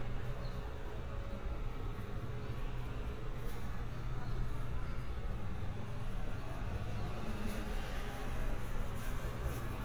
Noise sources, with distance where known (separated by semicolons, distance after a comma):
unidentified human voice, far